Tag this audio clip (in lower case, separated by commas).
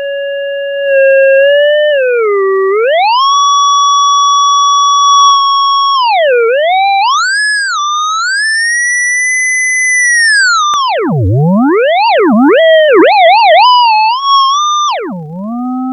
music, musical instrument